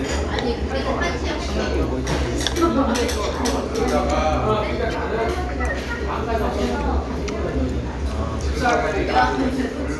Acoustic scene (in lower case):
restaurant